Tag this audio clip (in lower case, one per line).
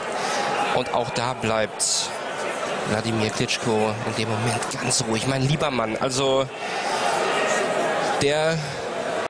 speech